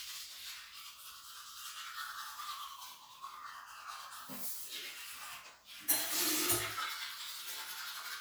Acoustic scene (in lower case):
restroom